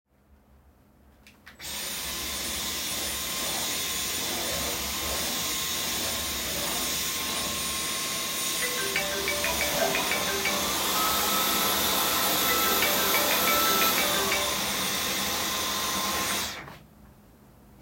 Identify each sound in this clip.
vacuum cleaner, phone ringing